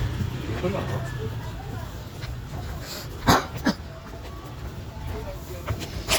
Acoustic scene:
park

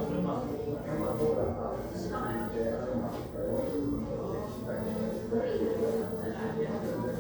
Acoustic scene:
crowded indoor space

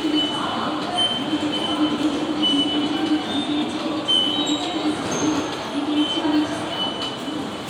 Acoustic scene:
subway station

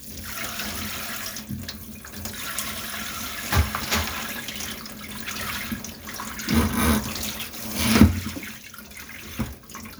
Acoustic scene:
kitchen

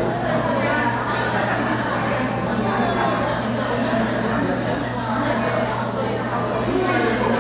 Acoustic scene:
crowded indoor space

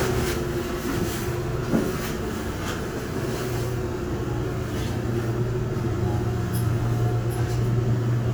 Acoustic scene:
bus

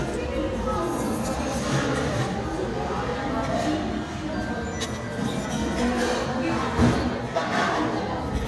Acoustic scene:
cafe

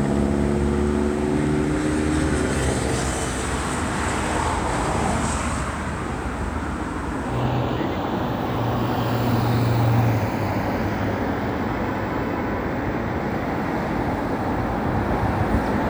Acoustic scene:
street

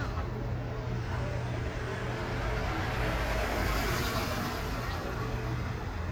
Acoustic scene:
residential area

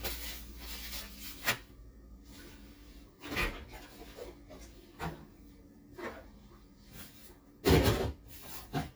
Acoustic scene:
kitchen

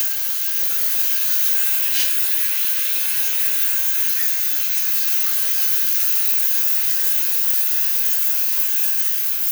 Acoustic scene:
restroom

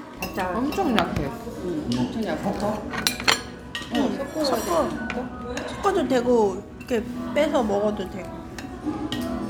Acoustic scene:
restaurant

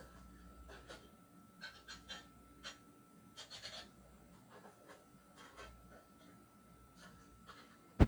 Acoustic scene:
kitchen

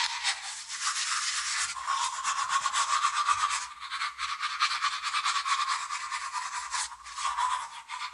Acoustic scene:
restroom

